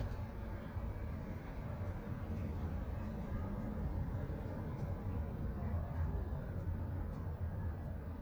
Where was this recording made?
in a residential area